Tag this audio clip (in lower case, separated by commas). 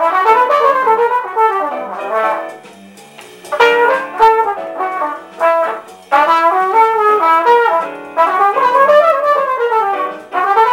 trumpet, brass instrument